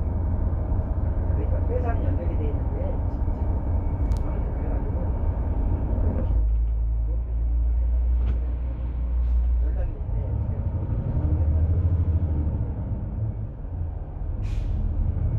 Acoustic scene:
bus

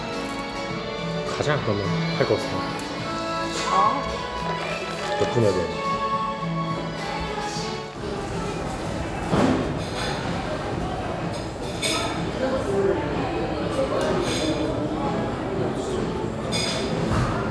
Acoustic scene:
cafe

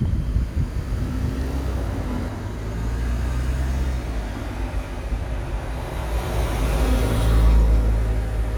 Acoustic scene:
street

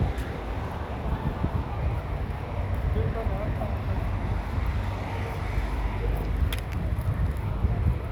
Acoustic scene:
residential area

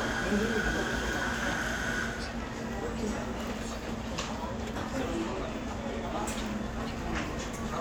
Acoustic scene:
crowded indoor space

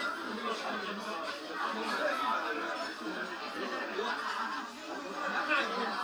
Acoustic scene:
restaurant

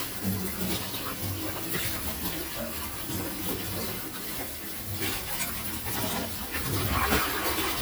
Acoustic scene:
kitchen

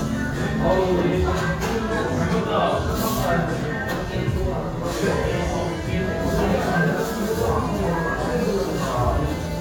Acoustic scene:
crowded indoor space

